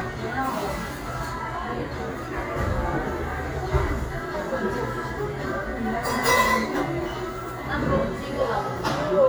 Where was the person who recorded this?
in a cafe